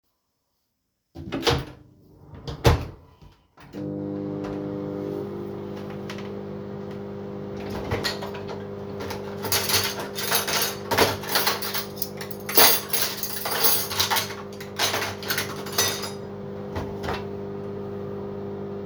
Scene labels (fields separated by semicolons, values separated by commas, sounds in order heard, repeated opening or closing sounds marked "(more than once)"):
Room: kitchen; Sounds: microwave, cutlery and dishes